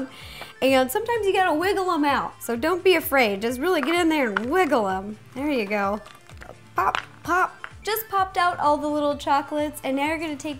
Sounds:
Speech, Music

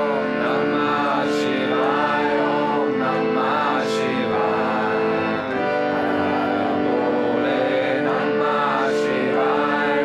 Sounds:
Music, Mantra

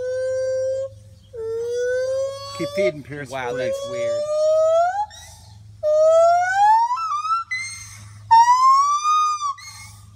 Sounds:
gibbon howling

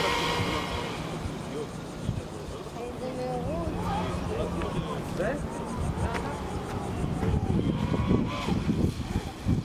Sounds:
Speech

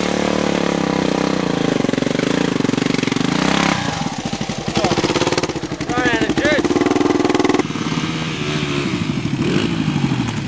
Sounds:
Speech

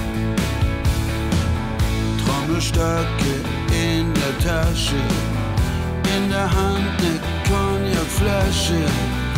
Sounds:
Music

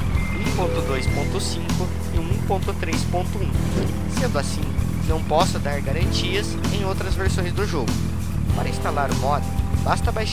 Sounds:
Speech, Music

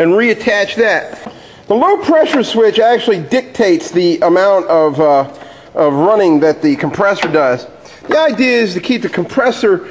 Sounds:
Speech

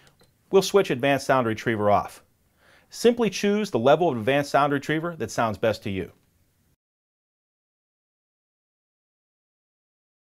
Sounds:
Speech

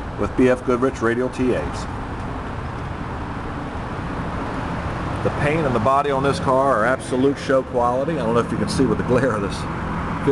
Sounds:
Motor vehicle (road), Speech, Car, Vehicle

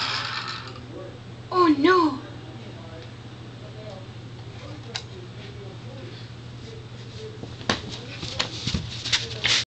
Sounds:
Speech

